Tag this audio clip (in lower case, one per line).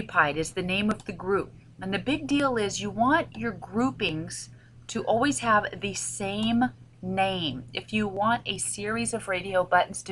narration